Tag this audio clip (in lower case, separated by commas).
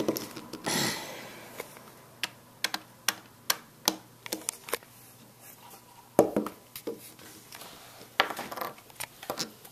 inside a small room